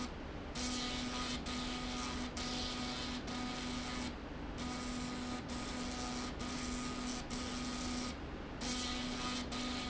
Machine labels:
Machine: slide rail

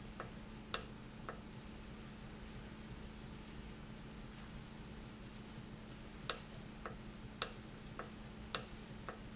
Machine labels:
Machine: valve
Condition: normal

